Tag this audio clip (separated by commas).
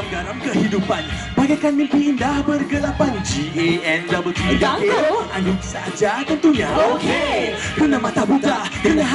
Soundtrack music, Music